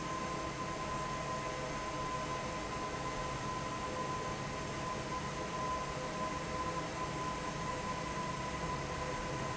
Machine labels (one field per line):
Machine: fan